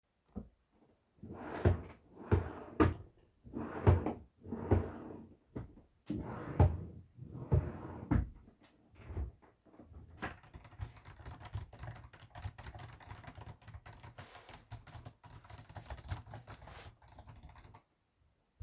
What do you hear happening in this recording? I searched my drawers under the desk and then started typing on my keyboard.